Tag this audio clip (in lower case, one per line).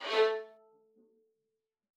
musical instrument
music
bowed string instrument